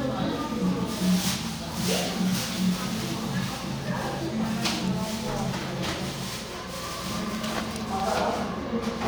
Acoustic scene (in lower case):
crowded indoor space